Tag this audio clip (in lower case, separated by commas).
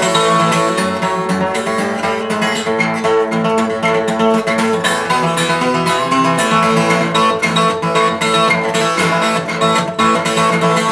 music